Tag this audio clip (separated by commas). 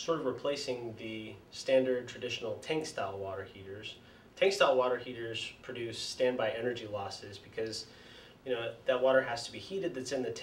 Speech